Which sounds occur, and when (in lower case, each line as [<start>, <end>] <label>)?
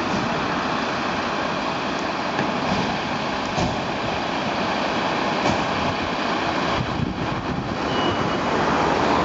[0.00, 9.24] truck
[0.00, 9.24] wind
[2.36, 2.45] tap
[2.63, 3.06] generic impact sounds
[3.54, 3.80] tap
[5.38, 5.64] tap
[6.69, 7.89] wind noise (microphone)
[7.90, 8.46] squeal